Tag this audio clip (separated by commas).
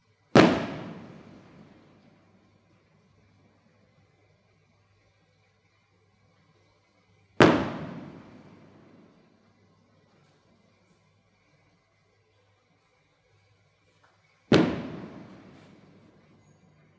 Fireworks, Explosion